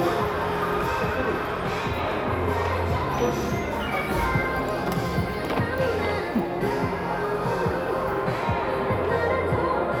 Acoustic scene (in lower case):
crowded indoor space